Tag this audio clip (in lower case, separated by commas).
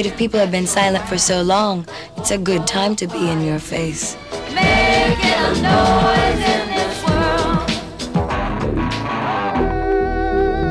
jingle (music), singing